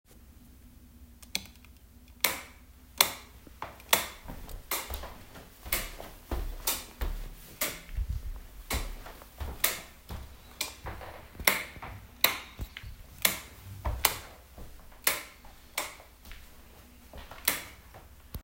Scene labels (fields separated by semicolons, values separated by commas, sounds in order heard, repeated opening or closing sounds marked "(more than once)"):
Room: living room; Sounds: footsteps, light switch